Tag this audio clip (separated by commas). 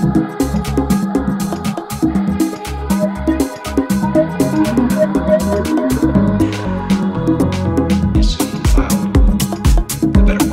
Music, House music